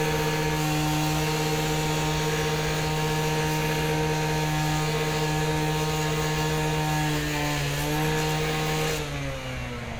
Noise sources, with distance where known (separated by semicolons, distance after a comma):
unidentified powered saw, near